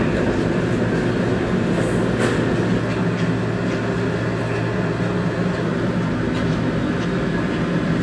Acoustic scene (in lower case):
subway station